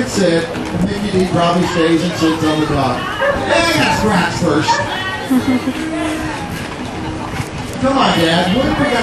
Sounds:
dog, speech, animal, bow-wow, pets

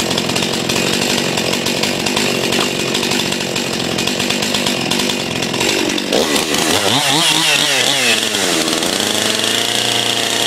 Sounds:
chainsaw, outside, rural or natural, power tool, chainsawing trees

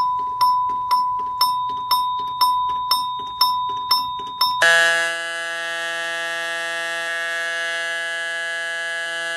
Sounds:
fire alarm

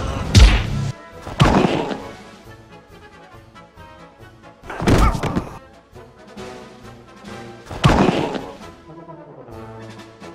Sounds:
music

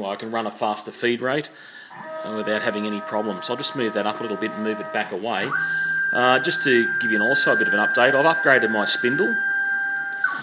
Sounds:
inside a small room, tools, speech

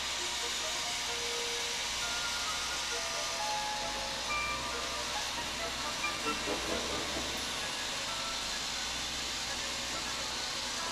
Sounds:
music

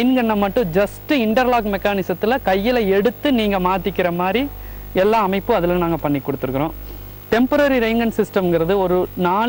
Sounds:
speech

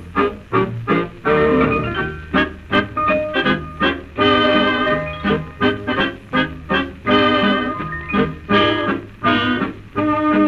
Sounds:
music

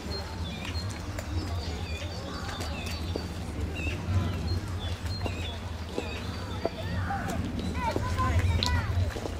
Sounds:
animal, speech

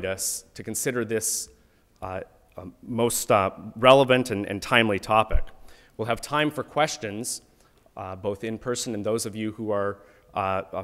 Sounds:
narration, male speech, speech

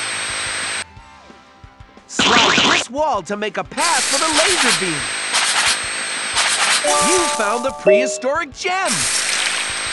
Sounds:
speech, music

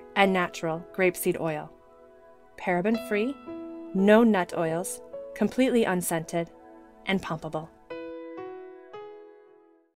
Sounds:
speech, music

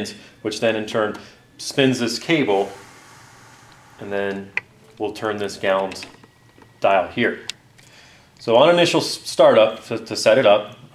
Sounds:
speech

